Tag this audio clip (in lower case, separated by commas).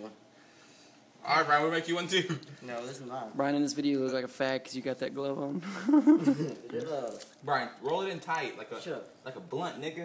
speech